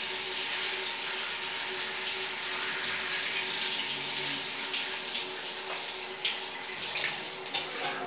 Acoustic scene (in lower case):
restroom